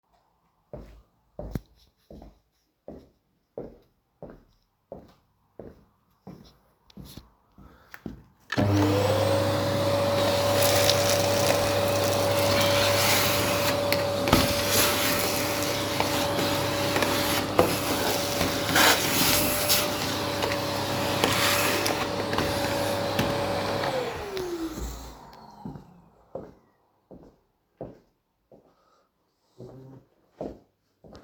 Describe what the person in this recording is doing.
I turned on the vacuum cleaner and walked slowly around the room while vacuuming.